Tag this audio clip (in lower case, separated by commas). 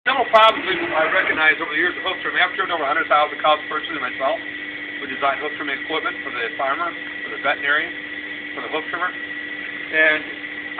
speech